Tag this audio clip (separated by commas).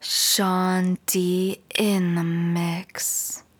Speech, Human voice, Female speech